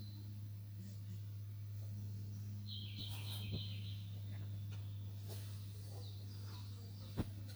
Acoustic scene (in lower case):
park